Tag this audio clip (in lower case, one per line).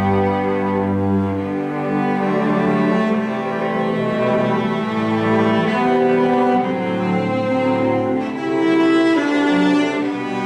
musical instrument
music
cello
playing cello